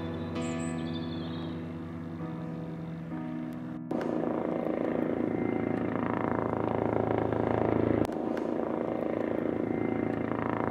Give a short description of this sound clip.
Music with birds chirping and an engine running intermittently